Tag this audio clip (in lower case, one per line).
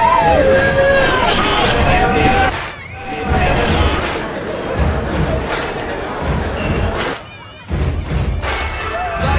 music
speech